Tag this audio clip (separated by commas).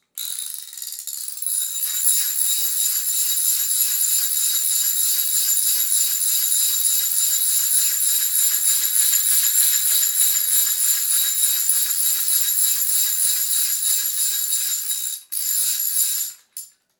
Tools